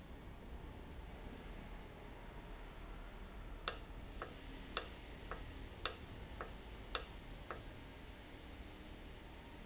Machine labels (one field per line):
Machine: valve